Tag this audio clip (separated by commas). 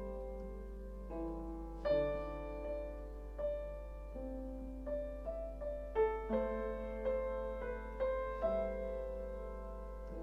Piano, Keyboard (musical)